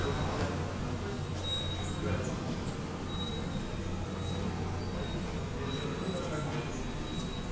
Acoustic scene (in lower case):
subway station